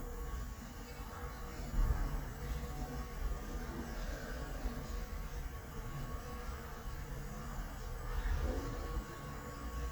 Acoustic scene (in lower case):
elevator